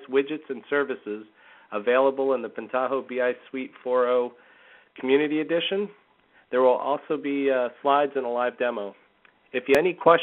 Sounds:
speech

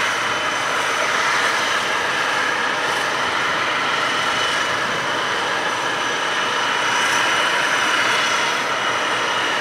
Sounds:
engine
vehicle

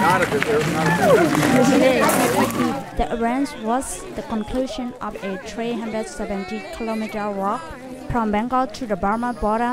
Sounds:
walk
speech

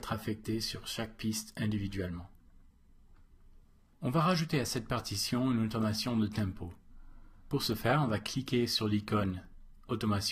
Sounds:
speech

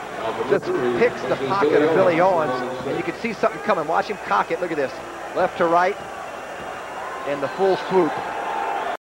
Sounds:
speech

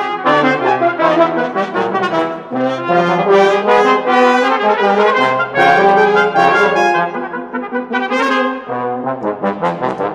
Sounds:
music
brass instrument
playing trombone
trombone

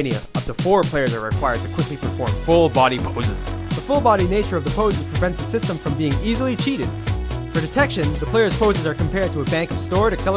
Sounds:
speech
music

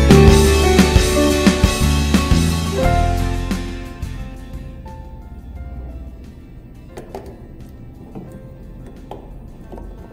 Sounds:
music

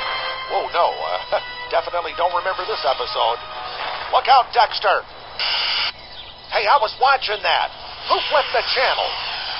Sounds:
music
speech

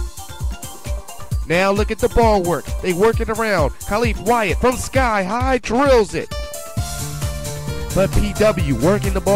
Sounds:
music
speech

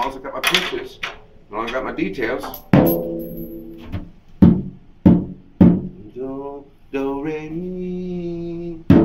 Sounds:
music
musical instrument
snare drum
drum
inside a small room

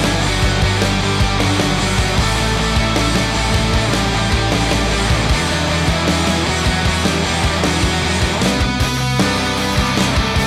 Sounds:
theme music
music

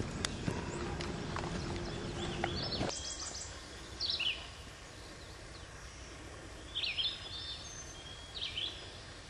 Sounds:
animal
bird

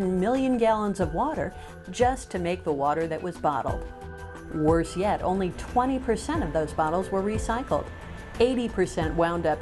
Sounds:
music
speech

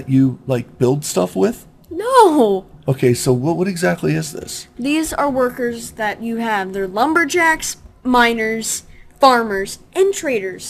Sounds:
speech

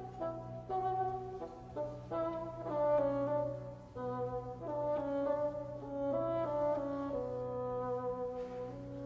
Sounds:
woodwind instrument

